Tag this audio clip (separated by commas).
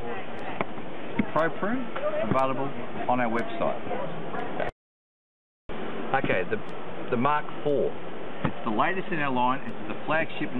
Speech